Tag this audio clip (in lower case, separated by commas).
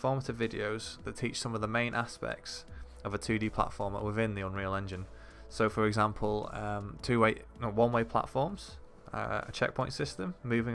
speech, music